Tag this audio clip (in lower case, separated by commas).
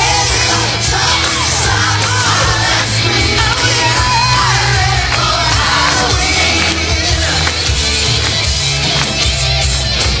guitar, musical instrument, music, plucked string instrument